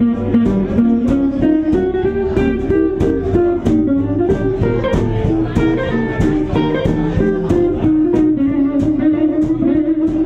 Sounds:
Music, Speech, Blues

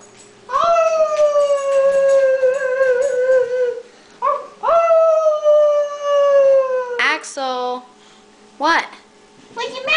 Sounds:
Speech

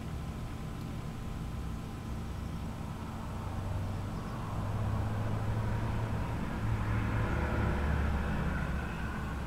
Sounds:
Chirp

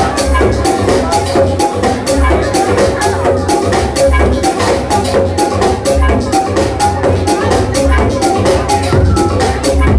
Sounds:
Music

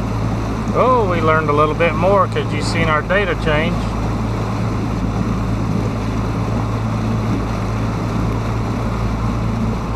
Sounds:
Speech, Ship, outside, rural or natural

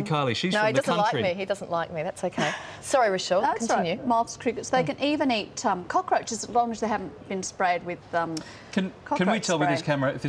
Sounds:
Speech

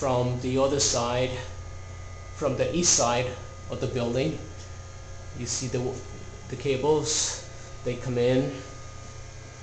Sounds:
Speech

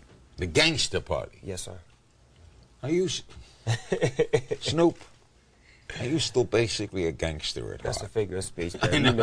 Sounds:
Speech

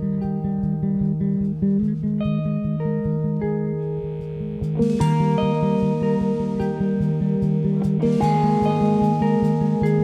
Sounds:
Music

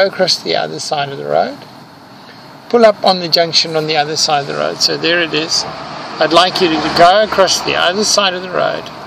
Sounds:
Car, Vehicle, Motor vehicle (road), Speech

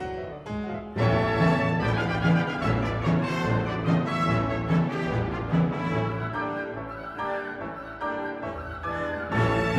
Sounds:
playing tympani

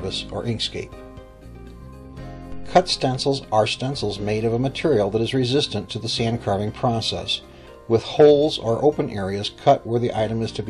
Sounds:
Speech, Music

